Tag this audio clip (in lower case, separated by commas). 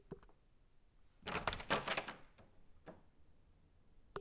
wood